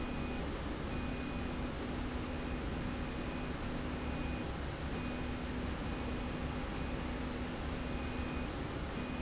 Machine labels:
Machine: slide rail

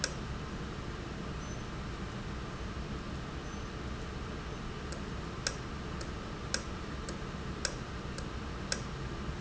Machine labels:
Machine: valve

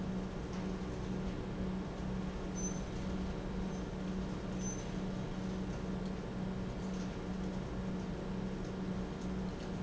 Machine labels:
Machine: pump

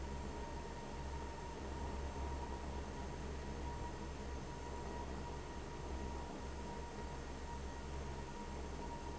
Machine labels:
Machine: fan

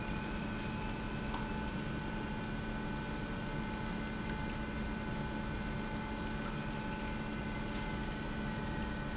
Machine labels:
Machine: pump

